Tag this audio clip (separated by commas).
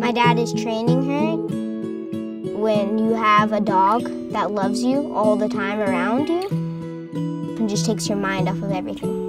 Music, Speech